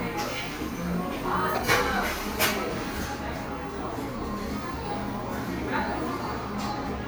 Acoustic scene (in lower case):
crowded indoor space